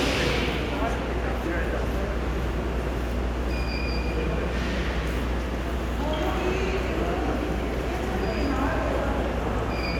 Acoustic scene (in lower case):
subway station